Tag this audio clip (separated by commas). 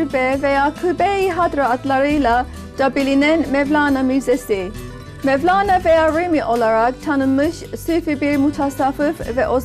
Speech, Music